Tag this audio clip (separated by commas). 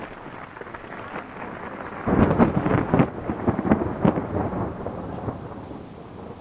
Thunderstorm, Thunder